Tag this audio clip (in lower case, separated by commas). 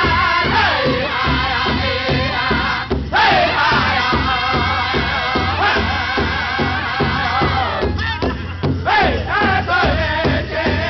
male singing, music